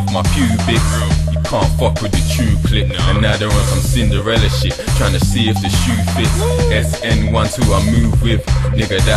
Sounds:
music, hip hop music

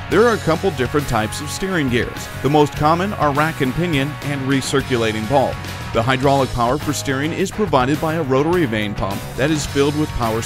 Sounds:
speech, music

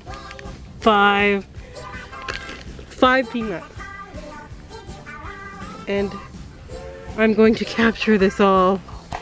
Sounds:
music, speech

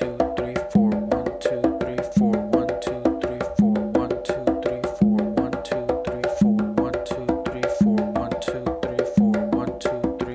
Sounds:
playing djembe

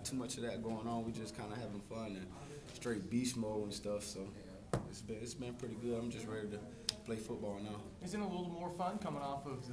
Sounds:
speech

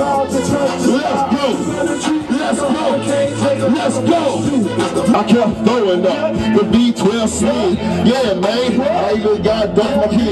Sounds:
music

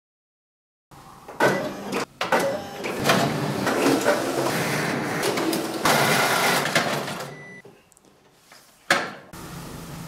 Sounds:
printer printing, printer

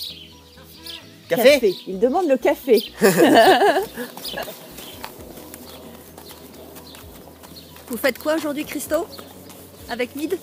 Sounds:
speech, music

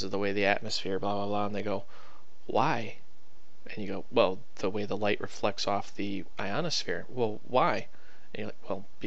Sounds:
speech

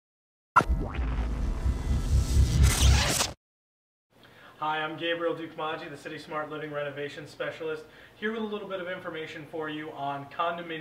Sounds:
music, speech

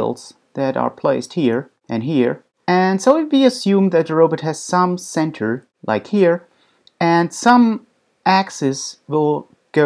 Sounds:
speech

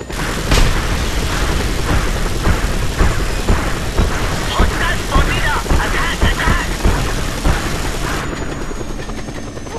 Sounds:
music, fusillade, speech

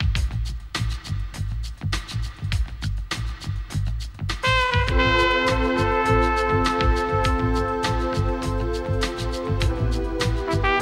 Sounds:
music

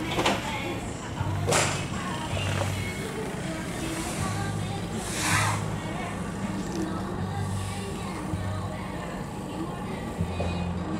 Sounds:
music, vehicle, speech

